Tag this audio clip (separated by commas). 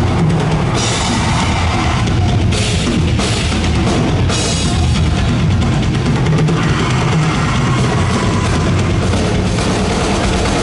Music, Musical instrument, Drum kit, Drum